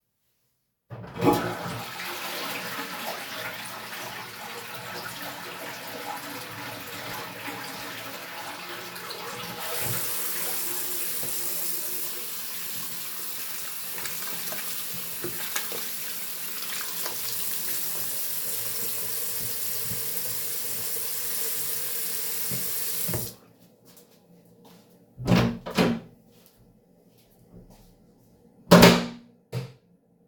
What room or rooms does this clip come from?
bathroom